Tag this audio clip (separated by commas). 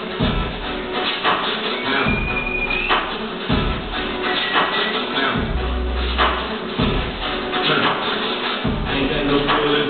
Music, inside a large room or hall